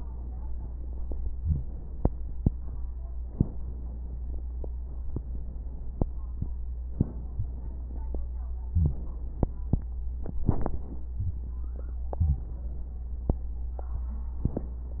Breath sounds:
Inhalation: 1.37-1.75 s, 3.22-3.60 s, 6.88-7.26 s, 8.69-9.07 s, 11.17-11.55 s, 12.15-12.53 s, 14.38-14.76 s

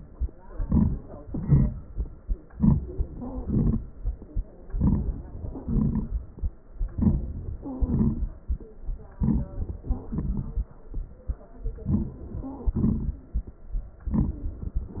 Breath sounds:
Wheeze: 3.12-3.54 s, 7.65-8.24 s, 9.78-10.19 s, 12.43-12.74 s

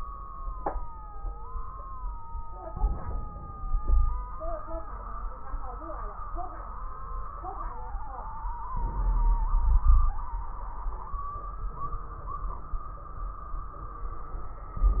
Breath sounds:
Inhalation: 2.68-3.57 s, 8.71-9.53 s
Exhalation: 3.57-4.35 s, 9.56-10.26 s
Wheeze: 3.57-4.33 s, 9.56-10.26 s
Crackles: 2.68-3.57 s, 8.67-9.55 s

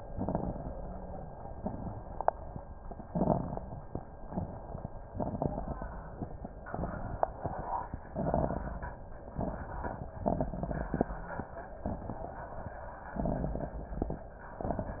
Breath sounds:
Inhalation: 0.08-0.72 s, 3.07-3.72 s, 5.18-5.94 s, 8.10-8.88 s, 10.27-11.04 s, 13.13-14.12 s
Exhalation: 1.57-1.99 s, 4.27-4.88 s, 6.64-7.25 s, 9.35-10.13 s, 11.84-12.62 s
Crackles: 0.08-0.72 s, 1.57-1.99 s, 3.07-3.72 s, 4.27-4.88 s, 5.18-5.94 s, 6.64-7.25 s, 8.10-8.88 s, 9.35-10.13 s, 10.27-11.04 s, 11.84-12.62 s, 13.13-14.12 s

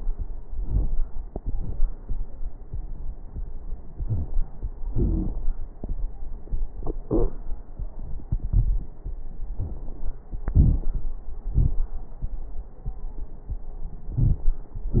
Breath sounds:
Inhalation: 0.50-0.96 s, 4.01-4.37 s
Exhalation: 1.30-1.76 s, 4.96-5.32 s
Wheeze: 4.01-4.37 s, 4.96-5.32 s, 14.19-14.45 s
Crackles: 0.50-0.96 s, 1.30-1.76 s

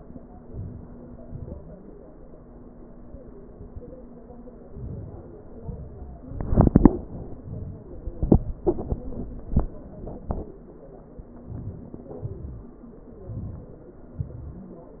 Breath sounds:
Inhalation: 0.48-0.87 s, 4.76-5.24 s, 11.54-12.17 s, 13.33-13.83 s
Exhalation: 1.24-1.63 s, 5.67-6.15 s, 12.31-12.82 s, 14.24-14.67 s

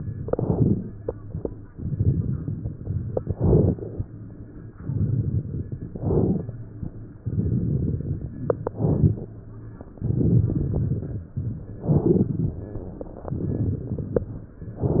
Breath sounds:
Inhalation: 0.20-0.82 s, 3.27-4.04 s, 5.95-6.57 s, 8.68-9.31 s, 11.83-12.38 s
Crackles: 0.18-0.81 s, 1.72-3.26 s, 3.27-4.04 s, 4.73-5.90 s, 5.95-6.57 s, 7.16-8.31 s, 9.98-11.26 s, 13.31-14.54 s

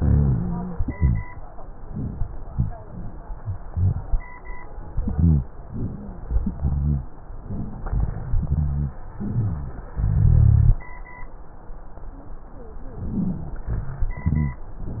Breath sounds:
Inhalation: 0.00-0.82 s, 5.75-6.30 s, 9.22-9.85 s, 12.94-13.68 s
Exhalation: 0.95-1.24 s, 10.00-10.80 s, 13.72-14.63 s
Wheeze: 5.75-6.30 s, 13.11-13.45 s
Rhonchi: 0.00-0.82 s, 0.95-1.24 s, 5.16-5.47 s, 6.58-7.14 s, 8.46-9.01 s, 9.22-9.85 s, 10.00-10.80 s, 14.17-14.63 s

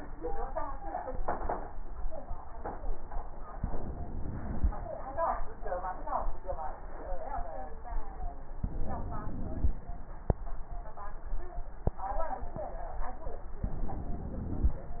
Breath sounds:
Inhalation: 3.58-4.79 s, 8.61-9.81 s, 13.65-14.95 s
Wheeze: 3.58-4.77 s, 8.59-9.78 s, 13.65-14.95 s

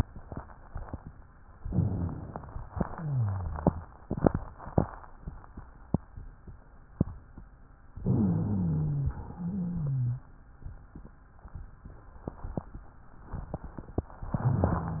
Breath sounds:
Inhalation: 1.59-2.70 s, 7.98-9.17 s, 14.29-15.00 s
Exhalation: 2.76-3.87 s, 9.17-10.28 s
Wheeze: 2.92-3.73 s, 8.02-9.13 s, 9.33-10.28 s
Rhonchi: 1.65-2.34 s, 14.29-15.00 s

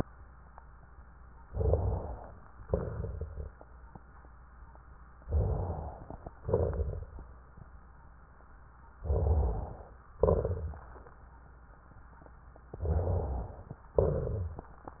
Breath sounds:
Inhalation: 1.50-2.46 s, 5.23-6.35 s, 9.04-10.02 s, 12.75-13.83 s
Exhalation: 2.61-3.64 s, 6.43-7.41 s, 10.21-11.19 s
Rhonchi: 12.75-13.48 s
Crackles: 1.50-2.46 s, 2.61-3.64 s, 5.23-6.35 s, 6.43-7.41 s, 10.21-11.19 s

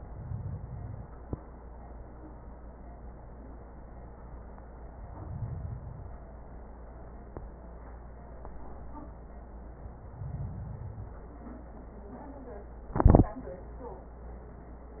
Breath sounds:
Inhalation: 0.00-1.05 s, 4.85-6.26 s, 9.89-11.31 s

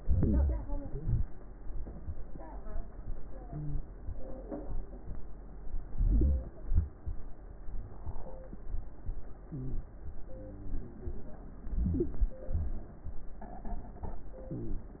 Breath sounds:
Inhalation: 0.00-0.79 s, 5.96-6.70 s, 11.64-12.38 s
Exhalation: 0.84-1.63 s, 6.74-7.48 s, 12.48-13.26 s
Crackles: 0.00-0.81 s, 0.82-1.63 s, 5.92-6.70 s, 6.72-7.50 s, 11.66-12.44 s, 12.48-13.26 s

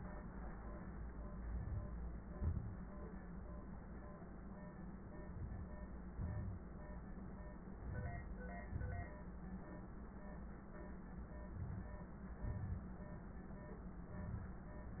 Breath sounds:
Inhalation: 1.46-1.92 s, 5.28-5.73 s, 7.76-8.22 s, 11.55-12.01 s
Exhalation: 2.26-2.71 s, 6.15-6.60 s, 8.69-9.15 s, 12.50-12.96 s

